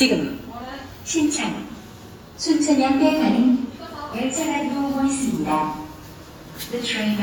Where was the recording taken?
in a subway station